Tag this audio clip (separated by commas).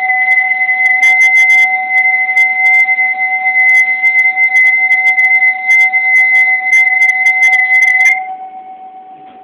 Whistle, Music